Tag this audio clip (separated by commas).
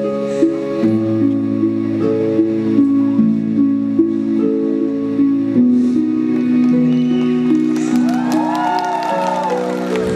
Music